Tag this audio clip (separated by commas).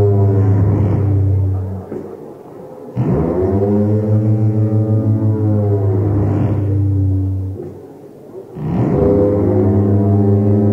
Music, Progressive rock